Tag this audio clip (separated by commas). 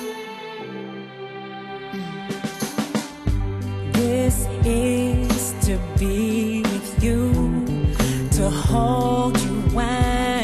Music, Christian music